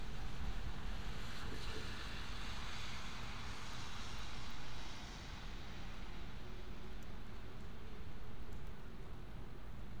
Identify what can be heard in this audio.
background noise